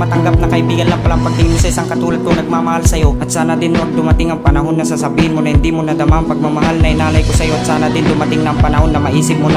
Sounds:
Music

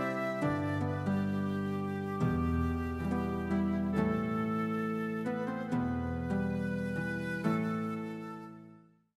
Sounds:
Music, Background music, Tender music

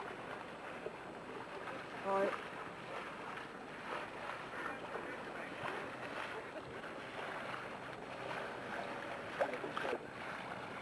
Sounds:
Water vehicle

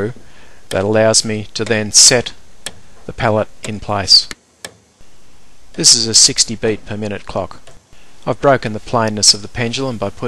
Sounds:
Speech, Tick-tock

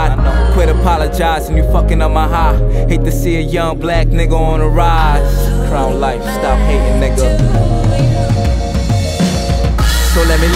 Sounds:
Music, Rhythm and blues

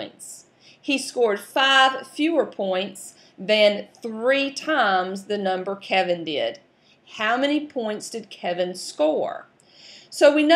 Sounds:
Speech

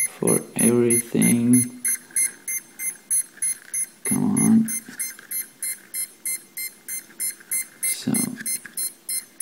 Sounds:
Speech

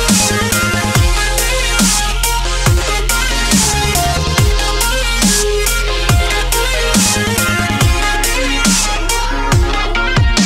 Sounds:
Dubstep, Music

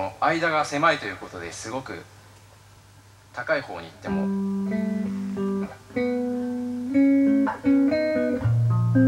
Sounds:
Guitar, Musical instrument, Plucked string instrument, Speech, Bass guitar, Music

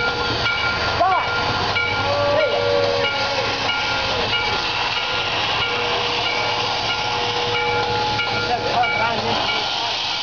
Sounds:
Speech, Vehicle, Engine, Heavy engine (low frequency)

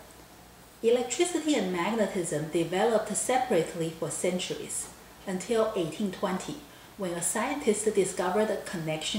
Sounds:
Speech

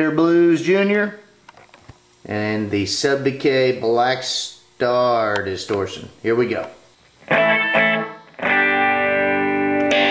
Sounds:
Plucked string instrument, Acoustic guitar, Musical instrument, Speech, Guitar, Music

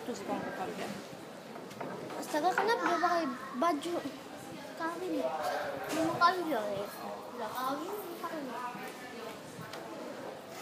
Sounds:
Speech

